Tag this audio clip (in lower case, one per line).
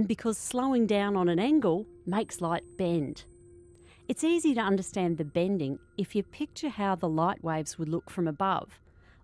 speech